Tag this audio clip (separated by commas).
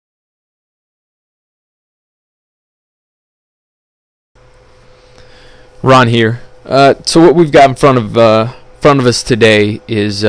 Speech